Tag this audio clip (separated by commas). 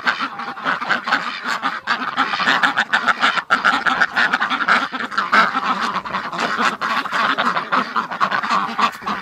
duck quacking